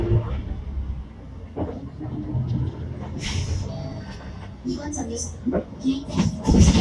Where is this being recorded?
on a bus